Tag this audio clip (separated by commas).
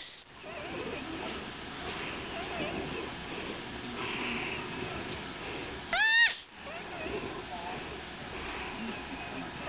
Animal, Domestic animals